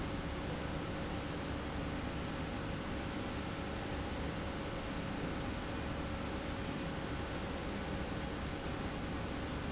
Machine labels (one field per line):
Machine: slide rail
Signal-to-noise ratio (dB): -6 dB